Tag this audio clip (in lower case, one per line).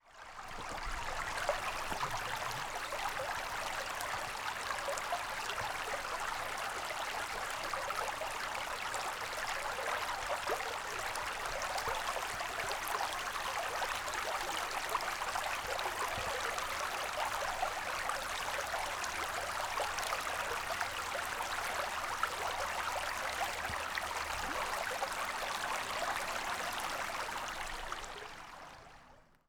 stream
pour
gurgling
dribble
liquid
water